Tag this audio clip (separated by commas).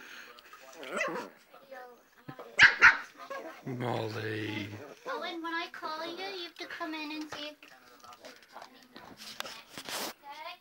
Speech, Animal, Dog, Domestic animals, canids, Bark